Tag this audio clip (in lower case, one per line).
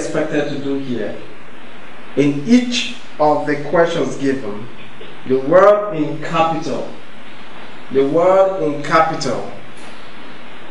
man speaking
narration
speech